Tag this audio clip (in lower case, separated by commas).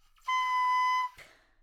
wind instrument, music, musical instrument